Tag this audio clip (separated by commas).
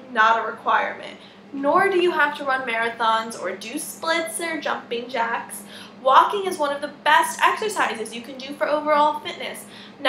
Speech